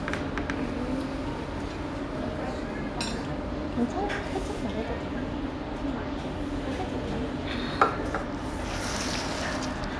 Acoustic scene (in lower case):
restaurant